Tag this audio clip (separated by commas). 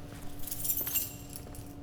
Keys jangling, Domestic sounds